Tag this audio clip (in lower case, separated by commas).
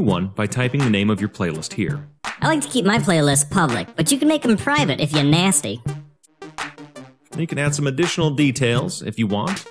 speech, music